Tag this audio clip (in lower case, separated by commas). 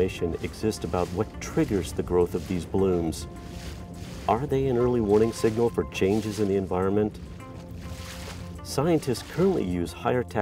music, speech